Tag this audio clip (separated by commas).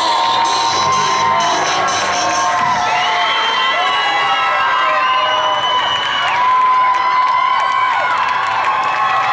Music, Speech